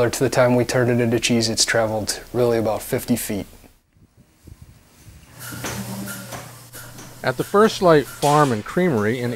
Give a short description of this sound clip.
A man is speaking and then another man narrates and something is clacking in the background